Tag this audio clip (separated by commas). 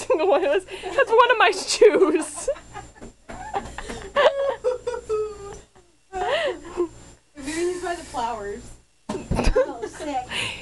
Speech